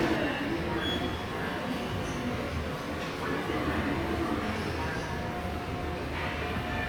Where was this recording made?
in a subway station